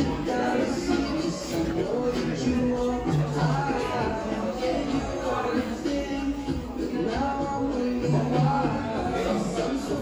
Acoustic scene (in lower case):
cafe